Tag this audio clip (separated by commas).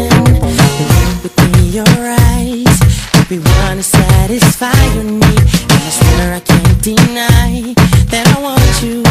Music